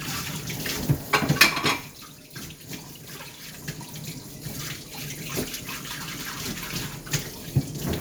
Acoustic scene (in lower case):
kitchen